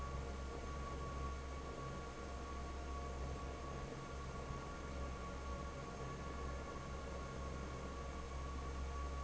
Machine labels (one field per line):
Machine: fan